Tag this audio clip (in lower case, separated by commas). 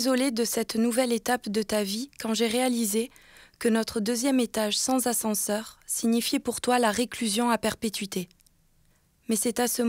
speech